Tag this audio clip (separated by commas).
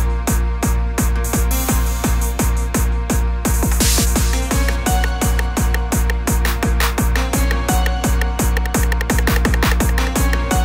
Music